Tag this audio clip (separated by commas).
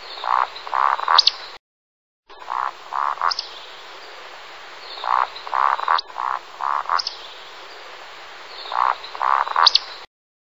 wood thrush calling